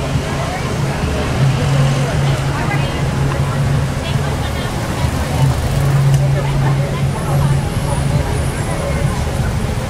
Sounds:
vehicle, speech

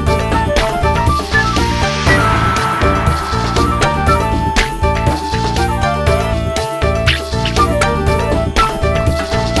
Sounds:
music

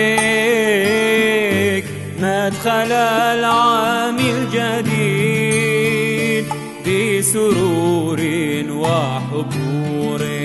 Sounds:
music, traditional music

